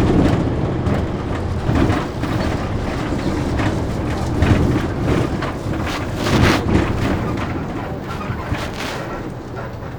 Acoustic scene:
bus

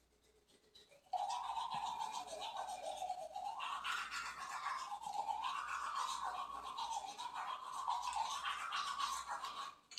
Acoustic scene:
restroom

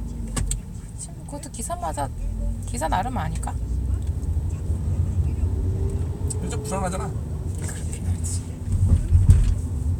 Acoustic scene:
car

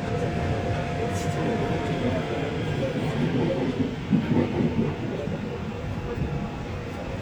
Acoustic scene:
subway train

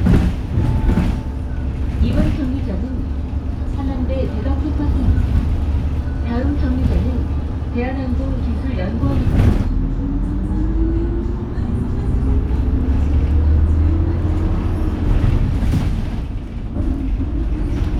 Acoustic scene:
bus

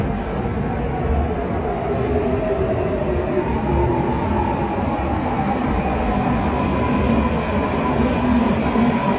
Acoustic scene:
subway station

